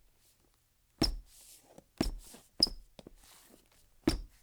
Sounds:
Squeak

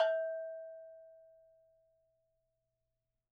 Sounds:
Bell

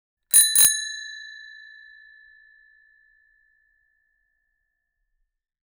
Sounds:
Vehicle, Alarm, Bell, Bicycle bell, Bicycle

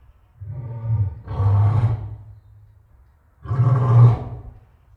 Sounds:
Animal, Growling

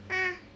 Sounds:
Speech, Human voice

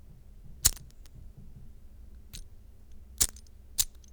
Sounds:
Fire

